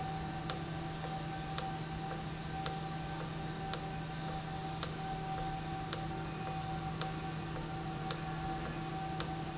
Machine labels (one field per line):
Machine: valve